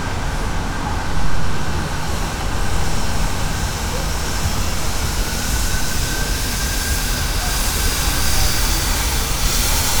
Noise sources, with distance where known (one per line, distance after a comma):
unidentified powered saw, near